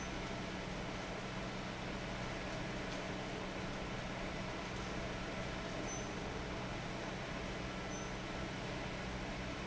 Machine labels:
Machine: fan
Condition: abnormal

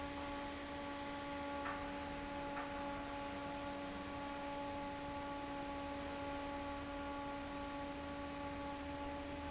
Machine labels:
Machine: fan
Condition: normal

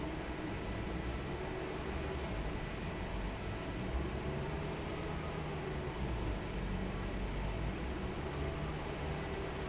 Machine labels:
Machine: fan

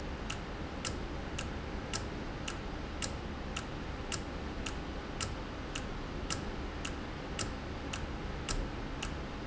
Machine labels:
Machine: valve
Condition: normal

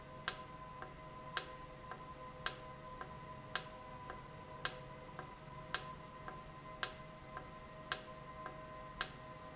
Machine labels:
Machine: valve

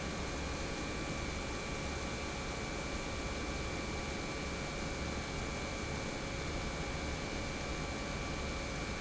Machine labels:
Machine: pump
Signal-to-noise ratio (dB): -6 dB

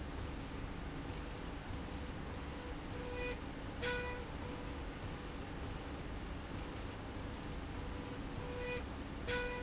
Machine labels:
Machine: slide rail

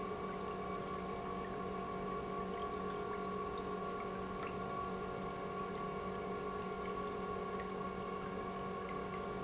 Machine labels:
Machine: pump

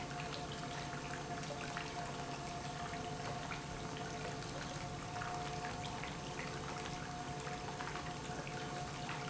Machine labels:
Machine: pump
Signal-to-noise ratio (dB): 0 dB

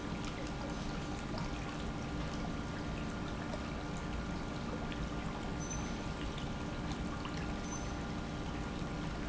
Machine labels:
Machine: pump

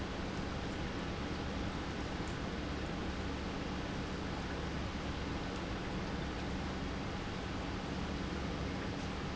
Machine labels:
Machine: pump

